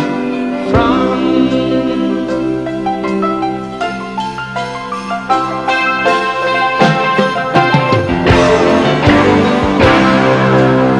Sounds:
Music, Progressive rock

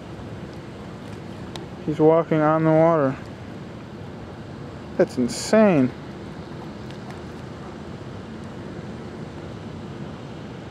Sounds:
Speech

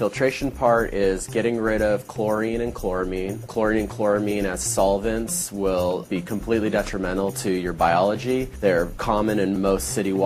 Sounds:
Speech, Music

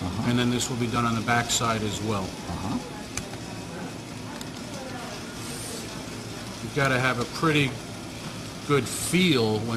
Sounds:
Speech

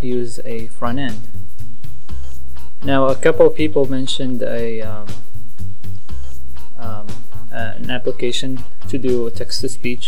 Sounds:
Music, Speech

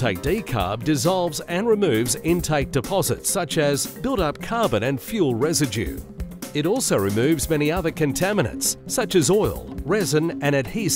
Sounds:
Music, Speech

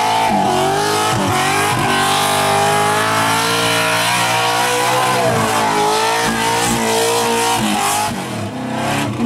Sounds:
Tire squeal, Vehicle, Skidding, auto racing, Car

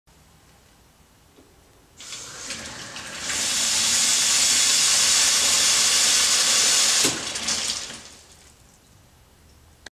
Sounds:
Sink (filling or washing), Water

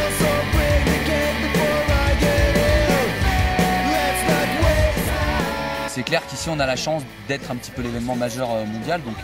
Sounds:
Speech, Music

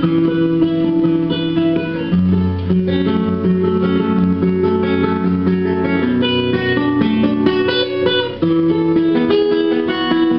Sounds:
Acoustic guitar, Musical instrument, Guitar, Strum, Music, Plucked string instrument

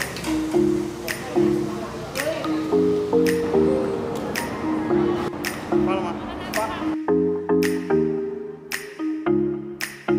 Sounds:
playing badminton

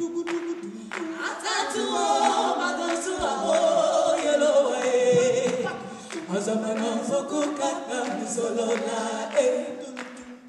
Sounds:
Music

